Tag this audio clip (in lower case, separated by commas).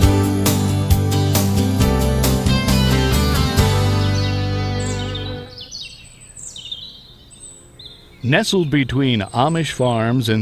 speech, bird vocalization, outside, rural or natural, music